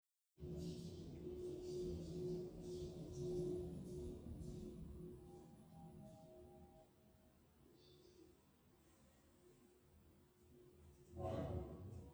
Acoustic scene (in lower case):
elevator